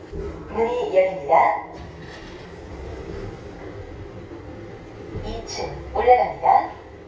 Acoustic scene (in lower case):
elevator